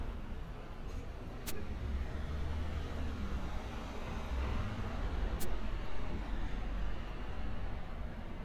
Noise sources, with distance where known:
medium-sounding engine

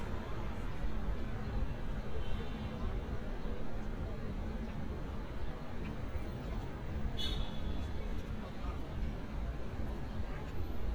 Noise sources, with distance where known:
car horn, far

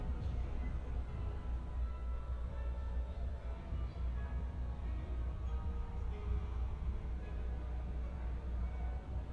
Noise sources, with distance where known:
music from a fixed source, far

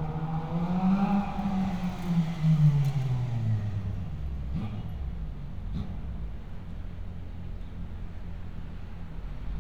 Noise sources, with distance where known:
medium-sounding engine, near

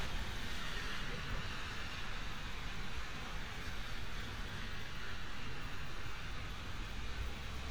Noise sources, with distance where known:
background noise

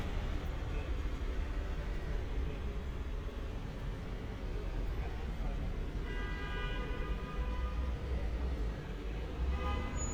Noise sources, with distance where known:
engine of unclear size, near
car horn, near
person or small group talking, near

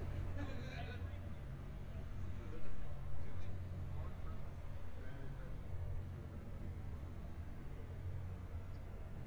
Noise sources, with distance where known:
unidentified human voice

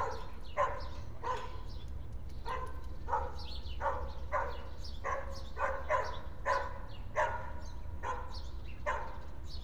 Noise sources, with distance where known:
dog barking or whining

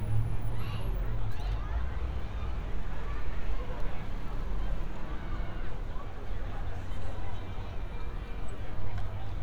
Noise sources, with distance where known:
person or small group shouting, far

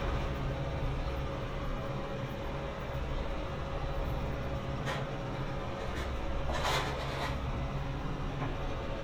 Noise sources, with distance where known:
engine of unclear size

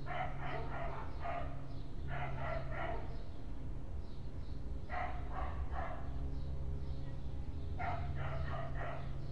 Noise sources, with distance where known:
dog barking or whining

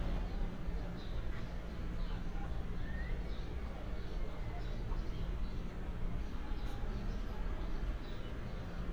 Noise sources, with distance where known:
background noise

